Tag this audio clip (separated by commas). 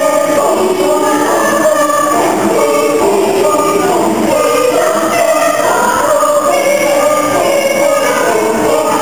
Choir, Music